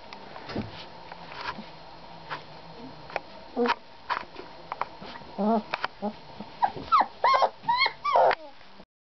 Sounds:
animal, domestic animals, dog

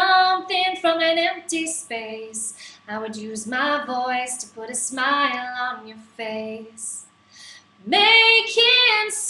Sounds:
female singing

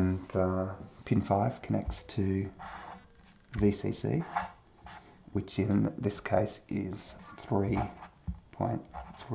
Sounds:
speech

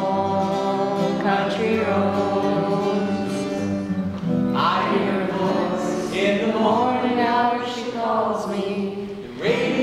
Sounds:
choir, male singing, music

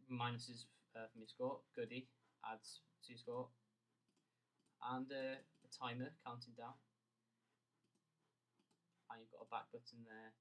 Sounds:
speech

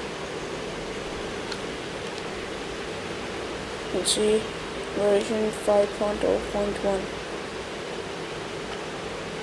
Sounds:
pink noise, speech, white noise

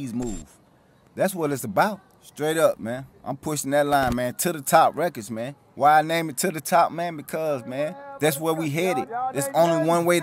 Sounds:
speech

